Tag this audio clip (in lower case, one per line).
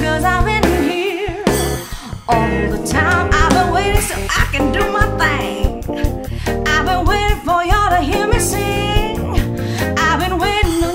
female singing
music